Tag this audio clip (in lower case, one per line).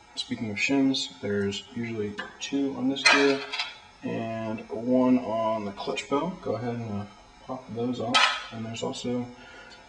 tools
speech